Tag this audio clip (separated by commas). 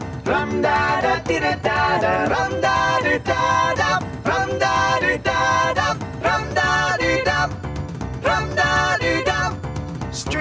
Music